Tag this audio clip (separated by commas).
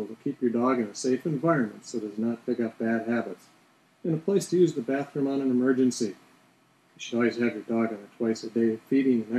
Speech